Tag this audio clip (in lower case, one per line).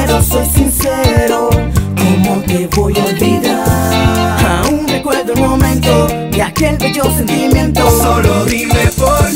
music